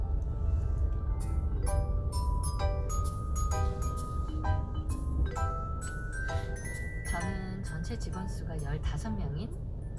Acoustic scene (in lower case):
car